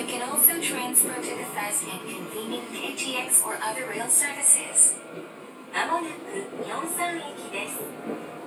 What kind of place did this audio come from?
subway train